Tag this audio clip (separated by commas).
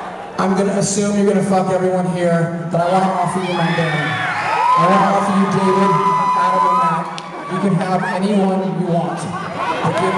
Speech